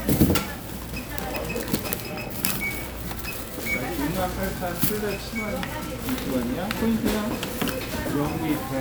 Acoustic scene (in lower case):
crowded indoor space